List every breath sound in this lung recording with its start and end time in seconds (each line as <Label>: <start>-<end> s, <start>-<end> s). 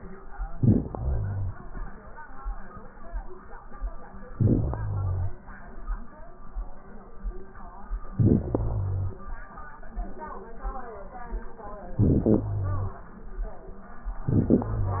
Inhalation: 0.55-1.61 s, 4.32-5.38 s, 8.11-9.18 s, 11.92-13.16 s, 14.16-15.00 s
Crackles: 0.55-1.61 s, 4.32-5.38 s, 8.11-9.18 s